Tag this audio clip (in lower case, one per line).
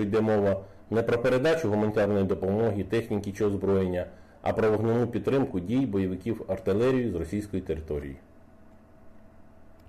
speech